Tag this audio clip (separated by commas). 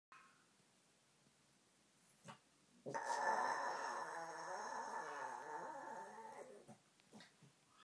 Animal, Dog, Howl, Domestic animals, canids